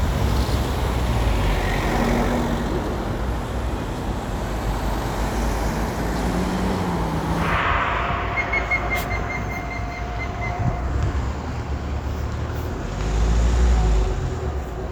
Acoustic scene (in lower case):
street